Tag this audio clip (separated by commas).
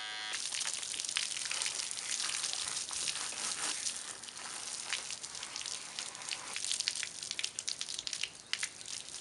Speech